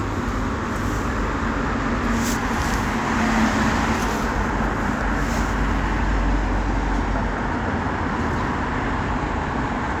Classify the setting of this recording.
street